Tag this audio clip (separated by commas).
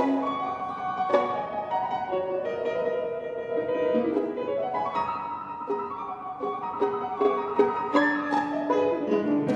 Music, Violin, Musical instrument